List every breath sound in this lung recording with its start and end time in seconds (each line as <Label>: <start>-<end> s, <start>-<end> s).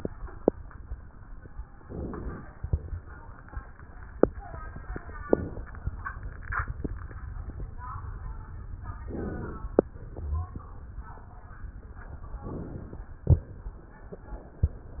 Inhalation: 1.76-2.49 s, 5.26-5.81 s, 9.09-9.73 s, 12.45-13.09 s